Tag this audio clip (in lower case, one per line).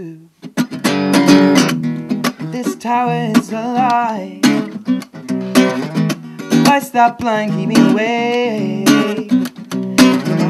music